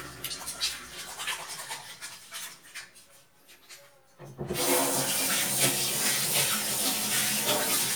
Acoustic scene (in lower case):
kitchen